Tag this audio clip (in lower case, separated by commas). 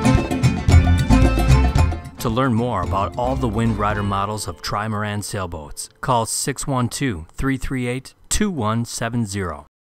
speech, music